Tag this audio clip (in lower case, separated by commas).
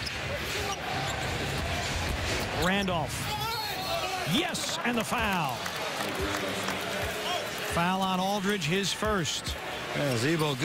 basketball bounce, speech